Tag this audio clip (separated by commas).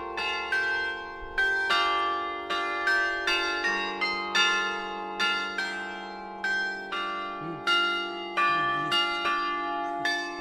wind chime